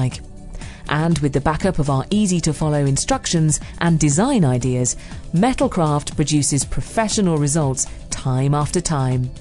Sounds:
music, speech

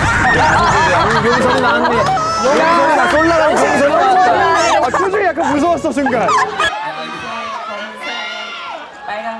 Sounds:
speech, music

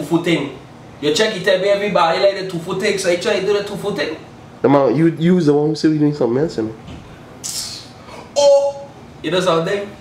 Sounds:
speech

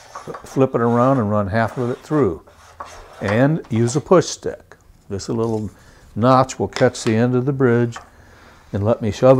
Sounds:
speech, tools

